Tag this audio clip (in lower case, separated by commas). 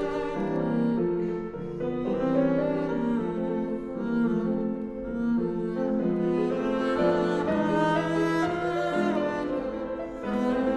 double bass, bowed string instrument, cello